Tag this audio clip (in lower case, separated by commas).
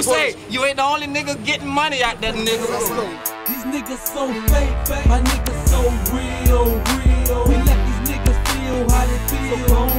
music, speech